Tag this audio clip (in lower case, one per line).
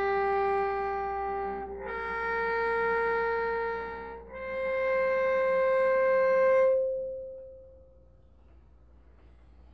music